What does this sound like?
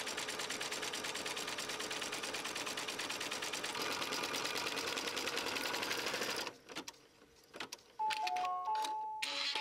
A sewing machine followed by the sound of a clock and music